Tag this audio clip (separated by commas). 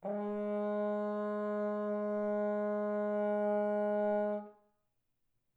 Musical instrument, Music, Brass instrument